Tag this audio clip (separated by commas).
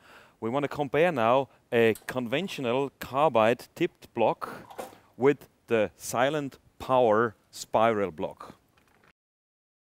Speech